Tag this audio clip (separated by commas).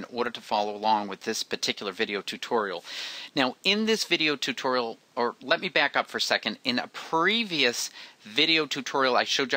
Speech